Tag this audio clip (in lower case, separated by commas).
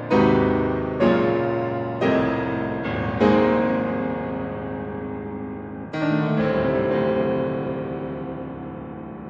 classical music, music, piano